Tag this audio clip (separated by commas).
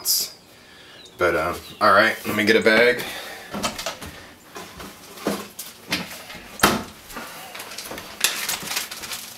dishes, pots and pans